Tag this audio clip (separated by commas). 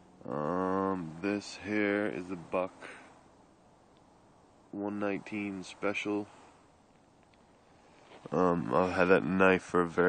Speech